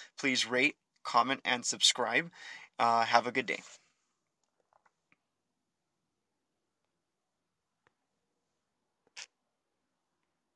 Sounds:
Speech

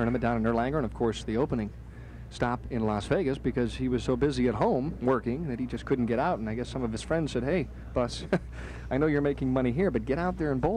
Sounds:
Speech

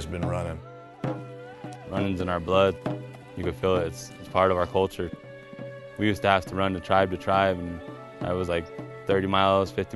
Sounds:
Speech, Music

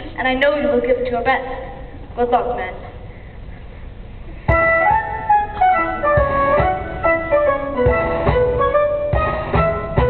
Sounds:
Speech, Music, Classical music

